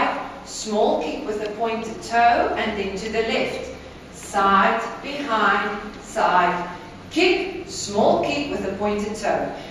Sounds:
speech

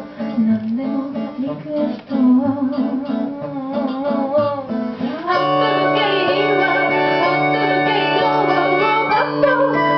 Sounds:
accordion, wedding music, singing, music

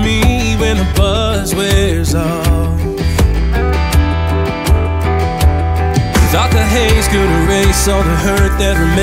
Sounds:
music

